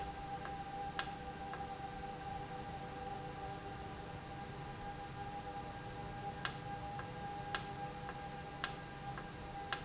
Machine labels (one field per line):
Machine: valve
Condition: normal